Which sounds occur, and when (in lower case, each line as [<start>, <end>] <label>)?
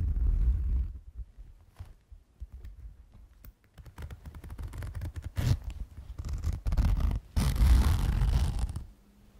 [0.00, 9.35] mechanisms